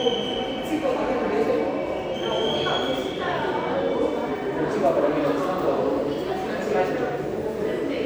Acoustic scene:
subway station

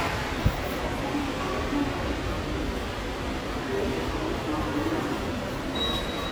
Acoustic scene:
subway station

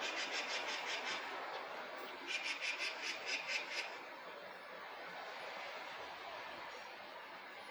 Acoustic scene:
park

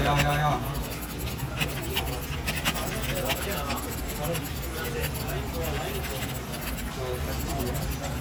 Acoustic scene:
crowded indoor space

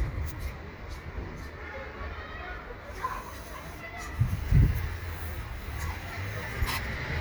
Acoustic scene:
residential area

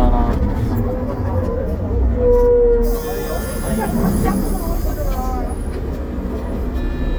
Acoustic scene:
bus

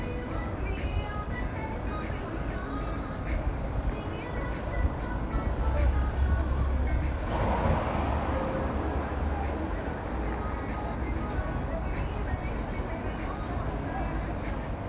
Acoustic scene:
street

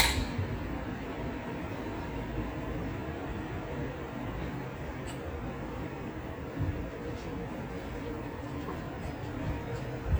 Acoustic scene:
residential area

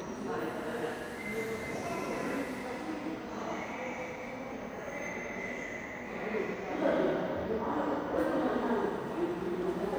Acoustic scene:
subway station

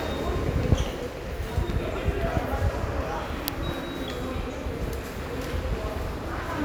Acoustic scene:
subway station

